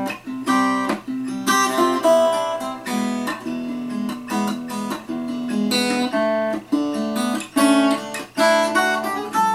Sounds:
Music, Plucked string instrument, Strum, Guitar, Musical instrument

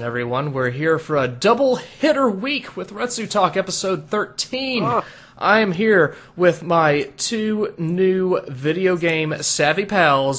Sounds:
Speech

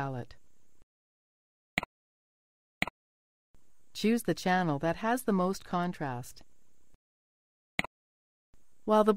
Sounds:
Speech, inside a small room

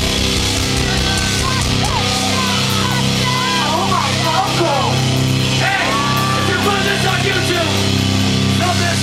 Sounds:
Speech, Music

